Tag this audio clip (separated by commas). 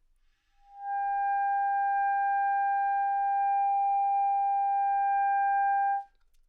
Musical instrument, Music, Wind instrument